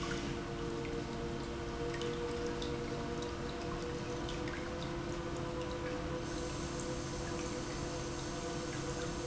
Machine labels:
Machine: pump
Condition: normal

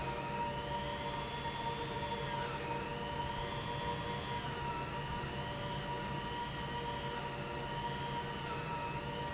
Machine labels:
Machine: pump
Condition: abnormal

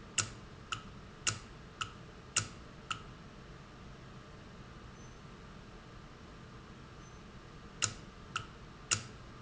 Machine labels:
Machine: valve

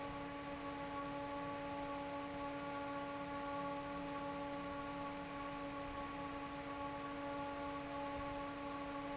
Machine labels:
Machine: fan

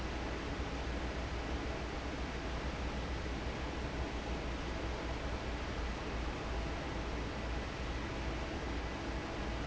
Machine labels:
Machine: fan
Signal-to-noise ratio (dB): -6 dB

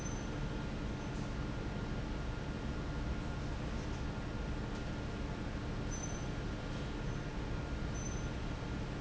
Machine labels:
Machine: fan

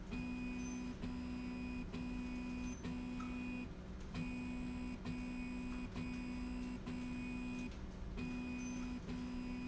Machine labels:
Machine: slide rail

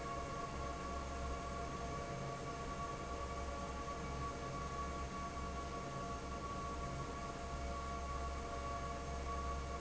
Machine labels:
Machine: fan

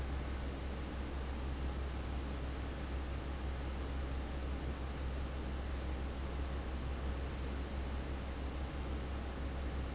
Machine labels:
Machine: fan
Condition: abnormal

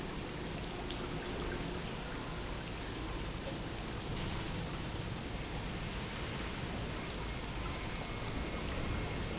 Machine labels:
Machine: pump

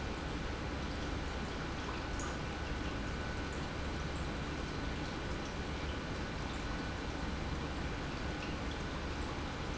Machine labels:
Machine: pump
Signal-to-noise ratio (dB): -6 dB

